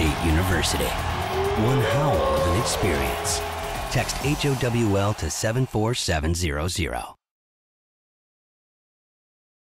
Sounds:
Speech, Music, Howl

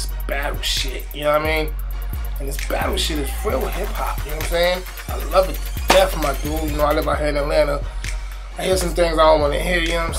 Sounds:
Music, Speech

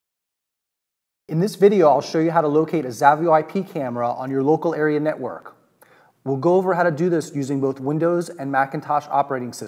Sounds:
Speech

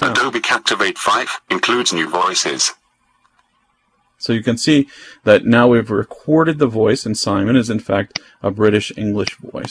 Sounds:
Speech, Speech synthesizer

